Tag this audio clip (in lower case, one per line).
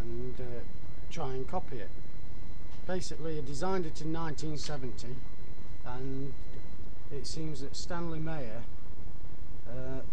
speech